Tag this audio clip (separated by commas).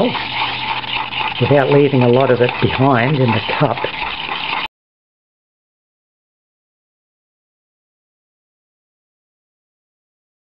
Silence, Speech